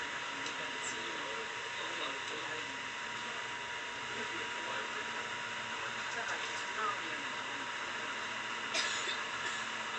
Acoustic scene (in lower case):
bus